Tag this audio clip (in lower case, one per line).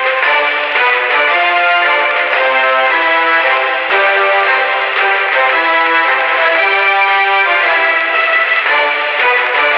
music